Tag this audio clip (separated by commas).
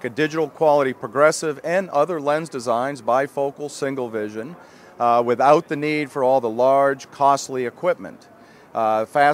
Speech